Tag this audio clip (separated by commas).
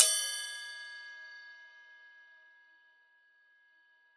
Crash cymbal, Cymbal, Music, Percussion, Musical instrument